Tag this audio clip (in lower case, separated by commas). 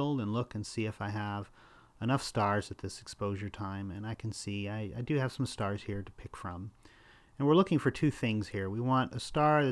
speech